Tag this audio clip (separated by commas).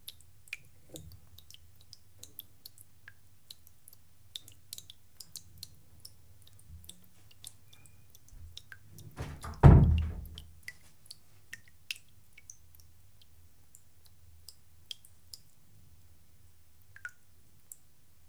Liquid, Drip